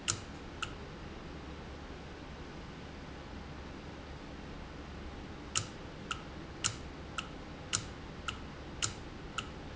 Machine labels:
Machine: valve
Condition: normal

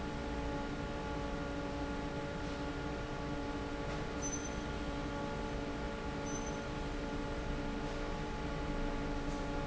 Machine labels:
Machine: fan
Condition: normal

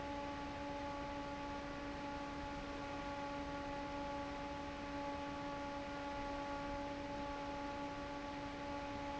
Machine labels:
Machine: fan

